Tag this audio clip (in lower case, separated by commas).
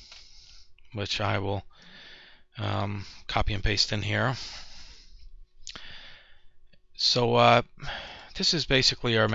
speech, inside a small room